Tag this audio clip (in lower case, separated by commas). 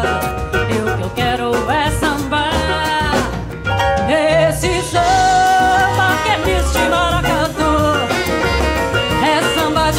jazz, swing music, singing